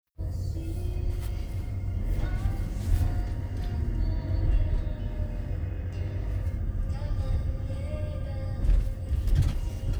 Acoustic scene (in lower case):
car